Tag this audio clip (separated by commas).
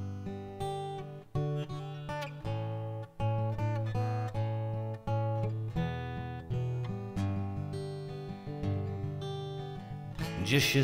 playing acoustic guitar, Acoustic guitar, Guitar, Musical instrument, Music, Strum, Plucked string instrument